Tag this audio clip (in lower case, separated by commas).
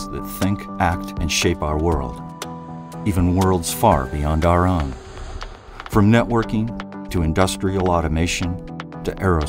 music, speech